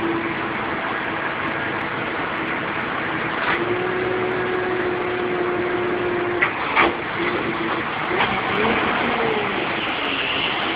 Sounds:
Vehicle

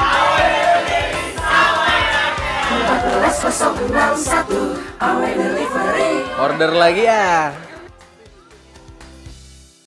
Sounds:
Music, Speech

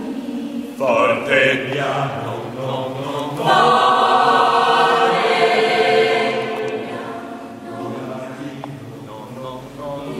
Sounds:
Choir, Vocal music, Singing

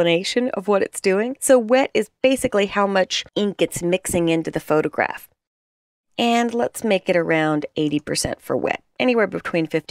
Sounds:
Speech

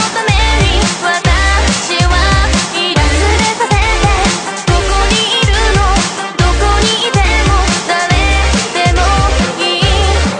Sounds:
Dubstep, Music

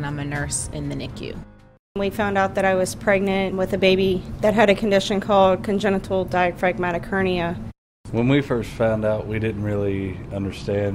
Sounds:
Music, Speech

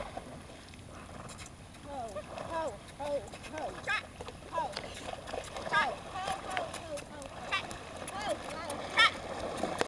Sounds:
Speech, Horse

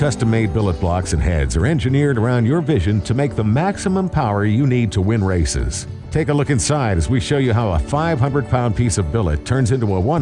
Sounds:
Speech, Music

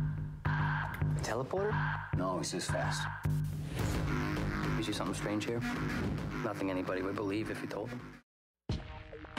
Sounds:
Speech, Music

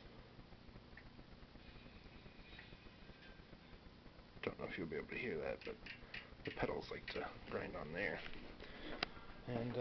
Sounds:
Speech

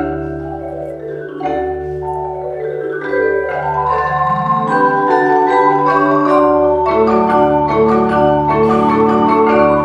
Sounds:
Mallet percussion, xylophone, Glockenspiel

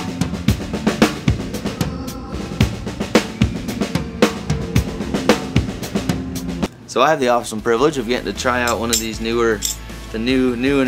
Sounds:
Music, Percussion, Speech

